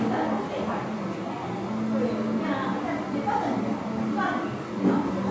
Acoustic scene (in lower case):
crowded indoor space